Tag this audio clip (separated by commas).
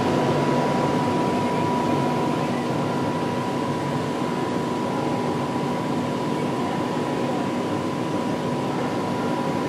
outside, urban or man-made